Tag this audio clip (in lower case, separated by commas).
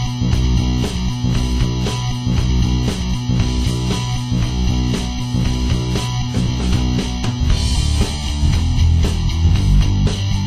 rock music